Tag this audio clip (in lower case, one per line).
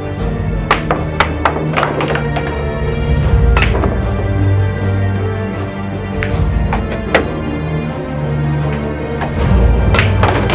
striking pool